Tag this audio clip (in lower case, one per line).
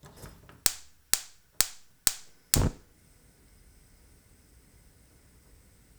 fire